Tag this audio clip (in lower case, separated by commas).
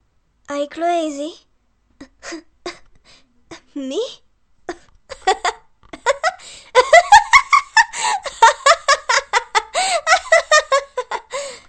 laughter, human voice